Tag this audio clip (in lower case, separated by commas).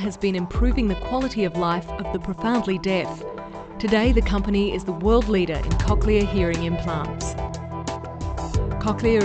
music, speech